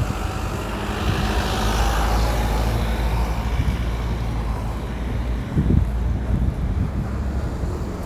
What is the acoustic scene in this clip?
street